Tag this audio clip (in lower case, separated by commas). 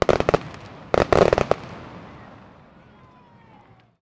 fireworks, explosion